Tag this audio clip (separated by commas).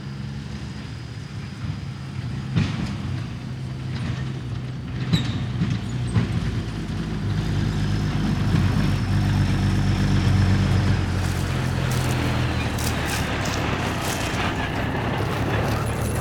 Motor vehicle (road), Truck, Vehicle